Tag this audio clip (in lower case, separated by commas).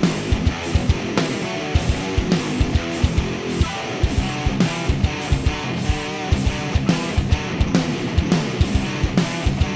musical instrument, acoustic guitar, strum, guitar, music, plucked string instrument